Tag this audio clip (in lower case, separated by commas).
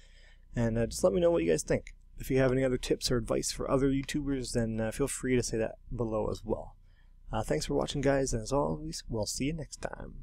speech